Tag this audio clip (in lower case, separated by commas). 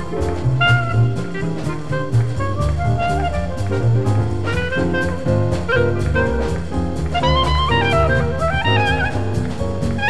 playing clarinet